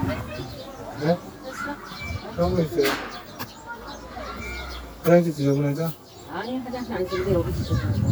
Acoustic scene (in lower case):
residential area